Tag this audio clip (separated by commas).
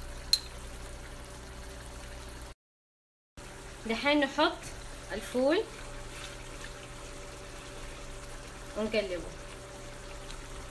Speech